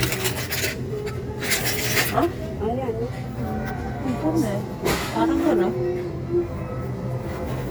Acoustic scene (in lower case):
crowded indoor space